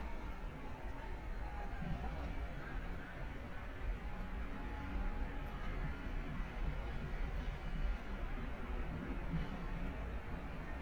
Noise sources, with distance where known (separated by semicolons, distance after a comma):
unidentified human voice, far